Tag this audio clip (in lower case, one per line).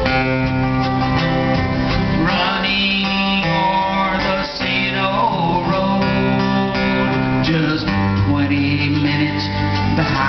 music